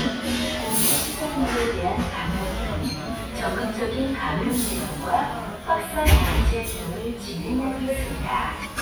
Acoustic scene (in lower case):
restaurant